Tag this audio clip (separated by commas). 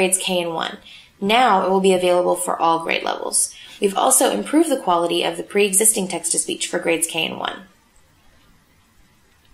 Speech, Female speech, monologue